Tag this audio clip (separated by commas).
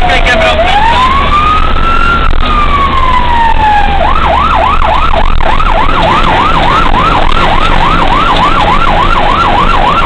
fire truck (siren), Medium engine (mid frequency), Speech, revving, Emergency vehicle, Truck, Vehicle